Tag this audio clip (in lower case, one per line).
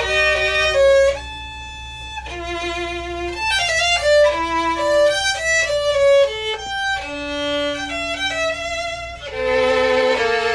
musical instrument
fiddle
music